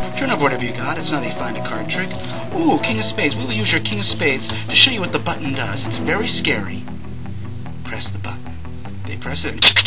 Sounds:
Music, Speech

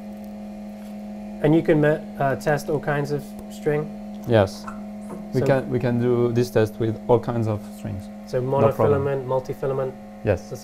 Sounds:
Speech

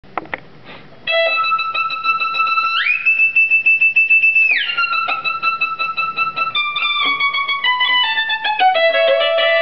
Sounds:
inside a small room, fiddle, Music, Bowed string instrument, Musical instrument

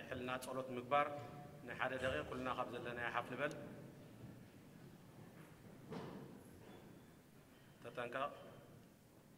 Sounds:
Speech, Male speech

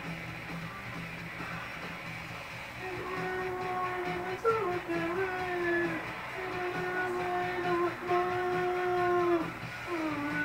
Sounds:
Strum, Plucked string instrument, Musical instrument, Acoustic guitar, Music, Electric guitar, Guitar

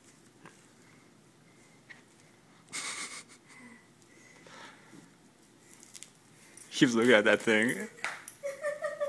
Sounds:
Speech

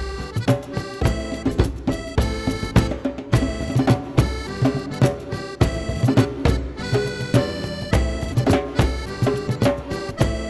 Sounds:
Folk music, Music

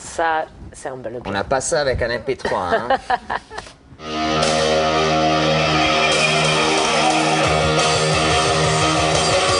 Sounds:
Speech, Music

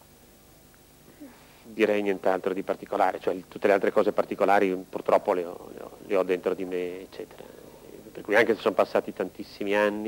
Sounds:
Speech

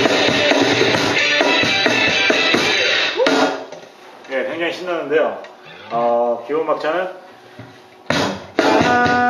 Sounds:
Music, Guitar, Musical instrument, Speech

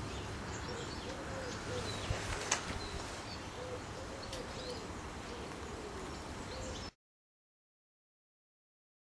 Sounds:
outside, rural or natural, Bird

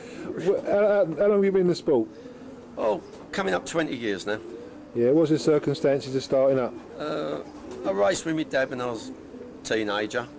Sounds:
Speech, Bird, Coo

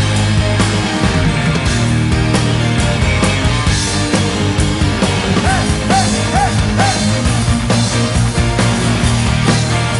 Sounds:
Music

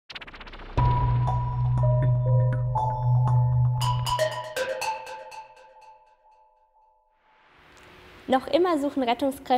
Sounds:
Music, Speech

